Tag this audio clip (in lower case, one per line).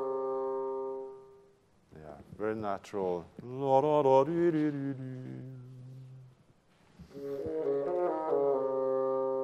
playing bassoon